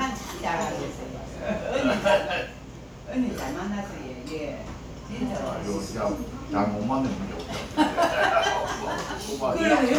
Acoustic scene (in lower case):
crowded indoor space